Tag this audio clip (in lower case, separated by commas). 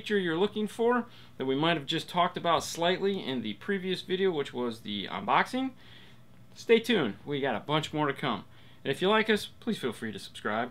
speech